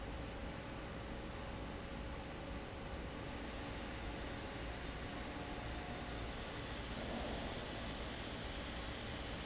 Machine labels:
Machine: fan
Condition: abnormal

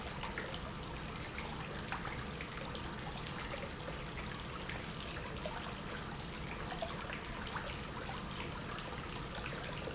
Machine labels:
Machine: pump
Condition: normal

